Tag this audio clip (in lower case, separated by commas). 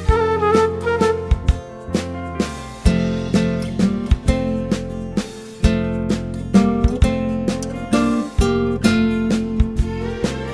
happy music, music